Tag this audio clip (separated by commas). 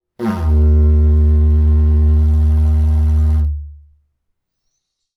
Music, Musical instrument